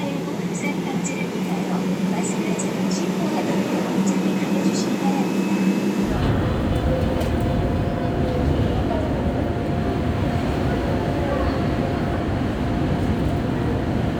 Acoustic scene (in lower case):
subway train